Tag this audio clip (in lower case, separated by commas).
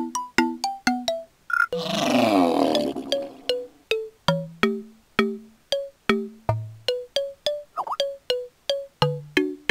music, roar